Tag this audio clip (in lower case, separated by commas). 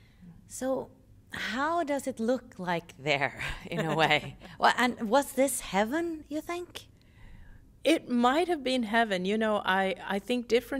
conversation, speech